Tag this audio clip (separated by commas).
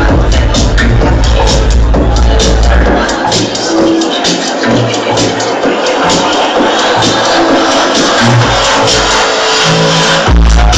Electronic music, Music